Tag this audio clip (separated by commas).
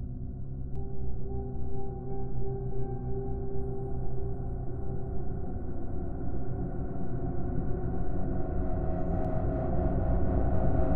Music